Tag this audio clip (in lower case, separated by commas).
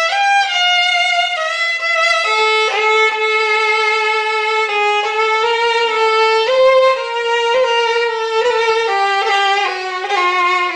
musical instrument, music, fiddle